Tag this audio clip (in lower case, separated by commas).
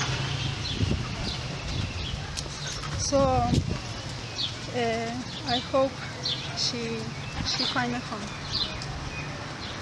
animal, outside, rural or natural, speech